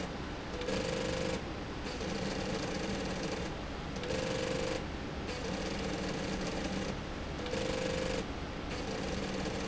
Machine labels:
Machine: slide rail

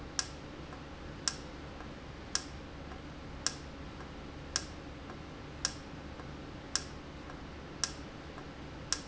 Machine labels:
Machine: valve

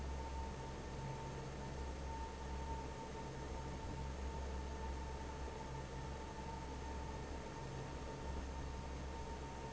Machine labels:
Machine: fan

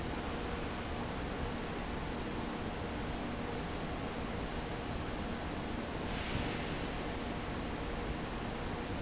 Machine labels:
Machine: fan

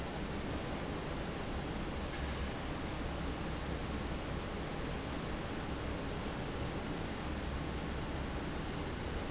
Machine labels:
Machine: fan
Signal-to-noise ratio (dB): -6 dB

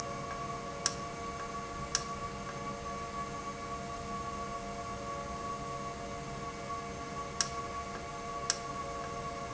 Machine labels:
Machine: valve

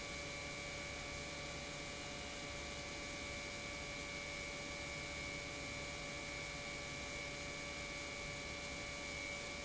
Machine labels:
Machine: pump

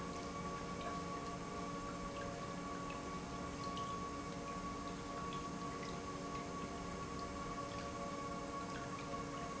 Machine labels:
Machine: pump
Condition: normal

